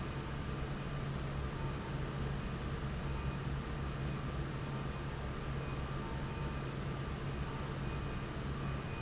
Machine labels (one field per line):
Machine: fan